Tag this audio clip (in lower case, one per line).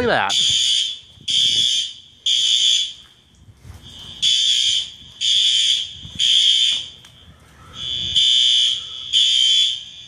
inside a large room or hall
fire alarm
speech